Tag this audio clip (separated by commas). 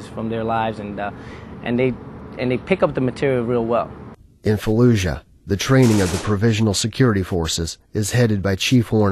Speech